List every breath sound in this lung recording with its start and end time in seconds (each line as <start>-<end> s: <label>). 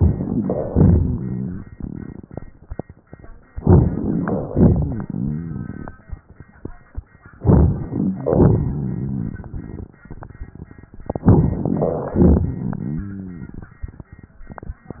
0.00-0.67 s: inhalation
0.00-0.67 s: crackles
0.66-1.67 s: exhalation
0.74-1.60 s: crackles
3.55-4.48 s: inhalation
3.55-4.48 s: crackles
4.52-5.08 s: exhalation
4.52-5.90 s: crackles
7.38-8.23 s: inhalation
7.38-8.23 s: crackles
8.22-9.45 s: exhalation
8.31-9.54 s: crackles
11.08-11.82 s: inhalation
12.14-13.56 s: exhalation
12.14-13.56 s: crackles